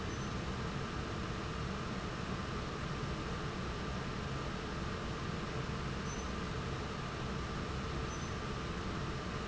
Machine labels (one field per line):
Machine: fan